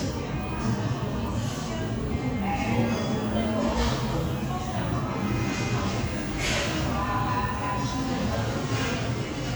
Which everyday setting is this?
crowded indoor space